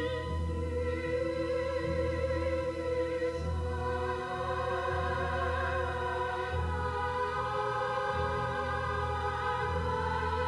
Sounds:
opera

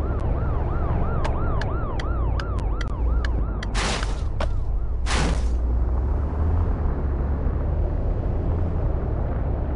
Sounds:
car, car passing by

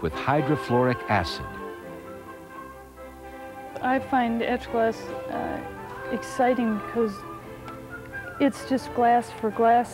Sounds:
music, speech

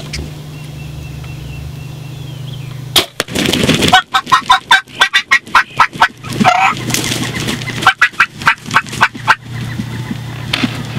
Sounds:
fowl, turkey, turkey gobbling, gobble

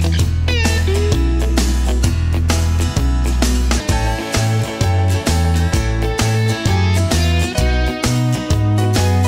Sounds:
music

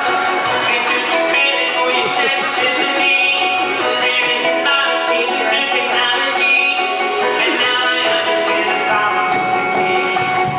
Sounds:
music

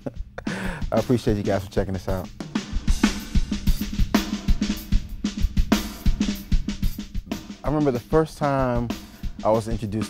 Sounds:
snare drum, drum, rimshot, drum kit, drum roll, percussion, bass drum

